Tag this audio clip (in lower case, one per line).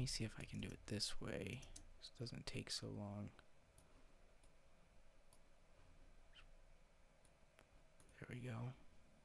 speech
inside a small room